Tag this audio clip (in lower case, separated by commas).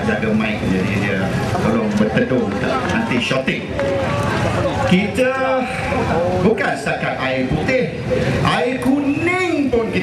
speech, monologue, male speech